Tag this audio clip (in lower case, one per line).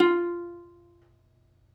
music
musical instrument
plucked string instrument